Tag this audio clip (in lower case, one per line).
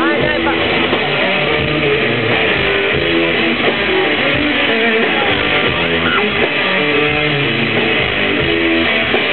music